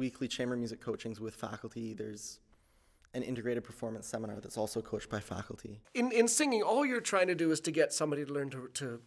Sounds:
Speech

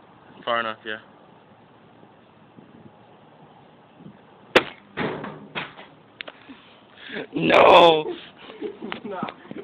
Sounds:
Speech

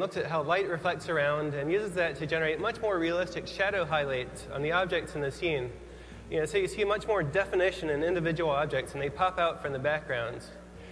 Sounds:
Speech, Music

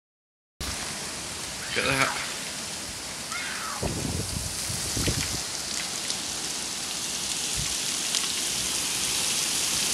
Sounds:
Rain on surface, Rain

